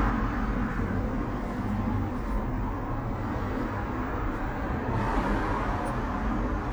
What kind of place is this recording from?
elevator